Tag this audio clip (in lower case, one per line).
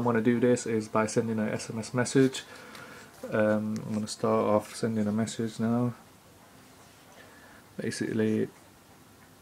speech